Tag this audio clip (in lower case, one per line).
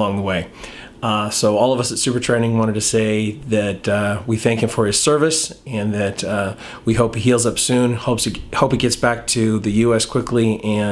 speech